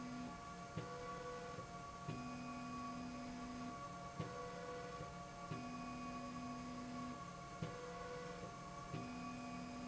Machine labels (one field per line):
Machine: slide rail